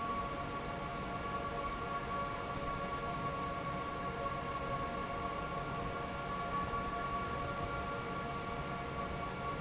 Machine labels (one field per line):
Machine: fan